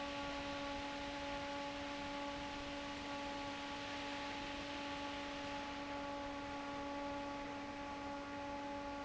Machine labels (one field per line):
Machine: fan